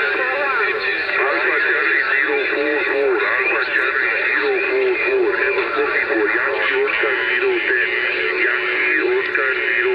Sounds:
Speech, Radio

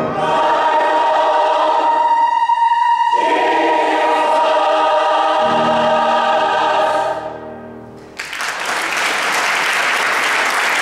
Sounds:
Classical music, Singing, Music, singing choir, Choir

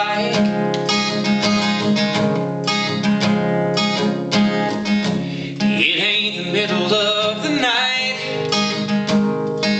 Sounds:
Music

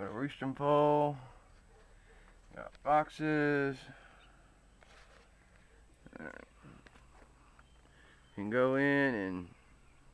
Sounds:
Speech

